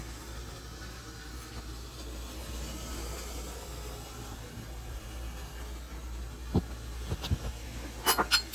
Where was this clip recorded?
in a kitchen